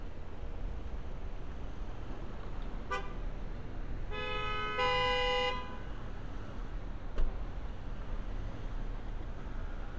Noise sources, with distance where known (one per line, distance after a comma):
car horn, near